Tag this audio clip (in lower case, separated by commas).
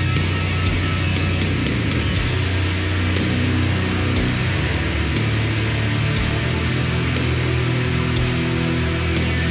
music